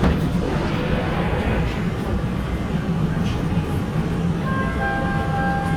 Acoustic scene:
subway train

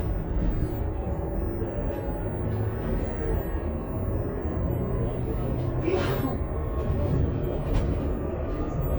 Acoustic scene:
bus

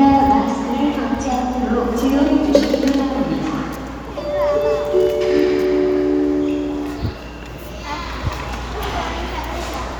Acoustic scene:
crowded indoor space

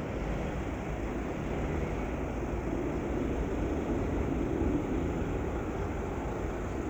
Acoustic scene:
street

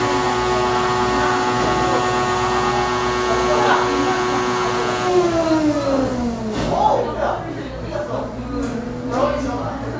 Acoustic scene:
cafe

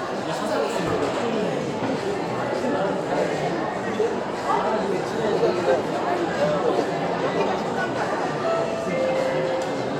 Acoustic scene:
restaurant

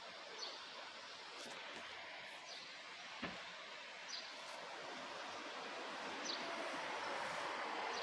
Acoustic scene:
park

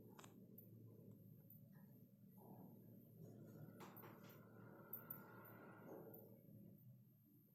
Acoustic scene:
elevator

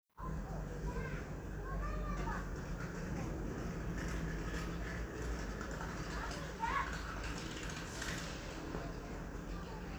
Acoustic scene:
residential area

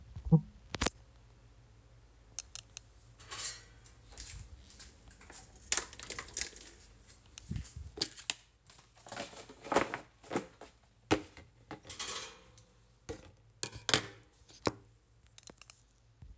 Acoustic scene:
kitchen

